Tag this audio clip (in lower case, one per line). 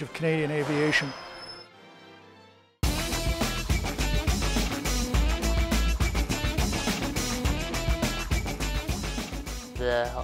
speech
music